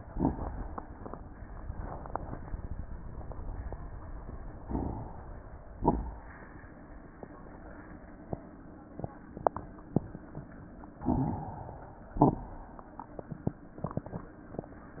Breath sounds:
Inhalation: 4.59-5.31 s, 11.10-11.82 s
Exhalation: 5.66-6.38 s, 12.12-12.71 s
Crackles: 5.66-6.38 s, 12.12-12.71 s

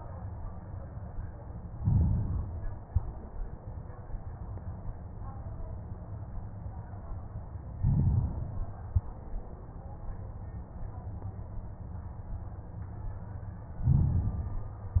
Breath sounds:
Inhalation: 1.71-2.79 s, 7.75-8.85 s, 13.79-15.00 s
Exhalation: 2.79-3.53 s, 8.85-9.54 s

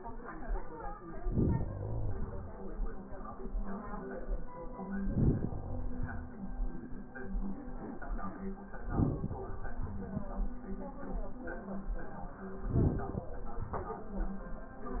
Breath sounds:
Inhalation: 1.16-2.62 s, 4.80-6.27 s, 8.64-10.23 s, 12.62-14.11 s
Crackles: 1.16-2.62 s, 4.80-6.27 s, 8.64-10.23 s, 12.62-14.11 s

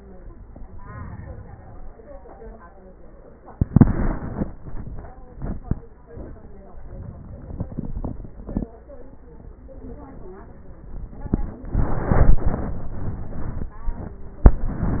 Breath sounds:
Inhalation: 0.55-2.05 s, 6.67-8.47 s

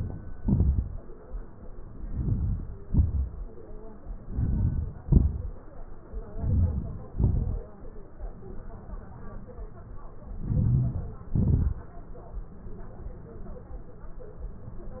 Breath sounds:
Inhalation: 2.12-2.67 s, 4.32-4.95 s, 6.44-7.01 s, 10.63-11.14 s
Exhalation: 2.90-3.35 s, 5.11-5.59 s, 7.18-7.63 s, 11.43-11.89 s

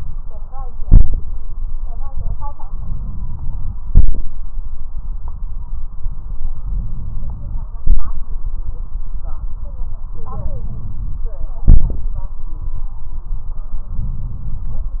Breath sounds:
Inhalation: 2.68-3.72 s, 6.62-7.71 s, 10.19-11.22 s, 13.92-14.95 s
Exhalation: 0.83-1.17 s, 3.91-4.25 s, 7.83-8.17 s, 11.70-12.04 s

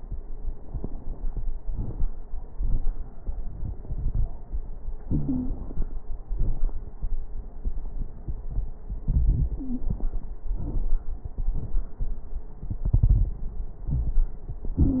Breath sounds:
Wheeze: 5.10-5.58 s, 9.58-9.94 s

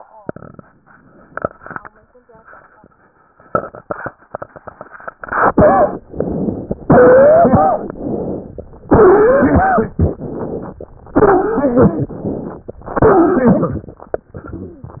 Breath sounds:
Inhalation: 6.02-6.84 s, 7.94-8.83 s, 9.97-10.89 s, 12.84-14.02 s
Exhalation: 5.18-6.00 s, 6.88-7.90 s, 8.91-9.91 s, 11.13-12.64 s

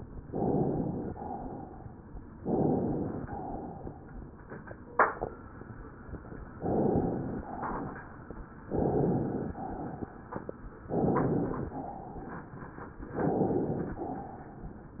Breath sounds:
Inhalation: 0.24-1.10 s, 2.36-3.26 s, 6.58-7.47 s, 8.71-9.59 s, 10.95-11.76 s, 13.13-13.98 s
Exhalation: 1.05-2.09 s, 3.25-4.44 s, 7.46-8.50 s, 9.58-10.61 s, 11.74-12.59 s
Crackles: 9.58-10.61 s

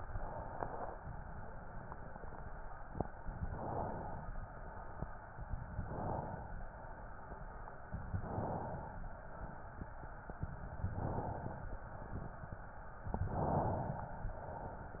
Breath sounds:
Inhalation: 0.00-0.93 s, 3.42-4.35 s, 5.70-6.63 s, 8.09-9.02 s, 10.85-11.78 s, 13.27-14.20 s

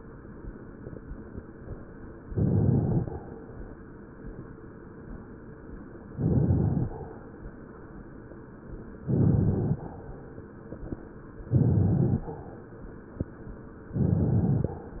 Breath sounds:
Inhalation: 2.24-3.09 s, 6.09-6.93 s, 9.03-9.87 s, 11.48-12.30 s, 14.00-14.82 s

